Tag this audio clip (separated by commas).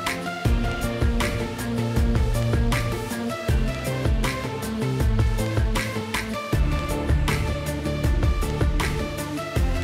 Music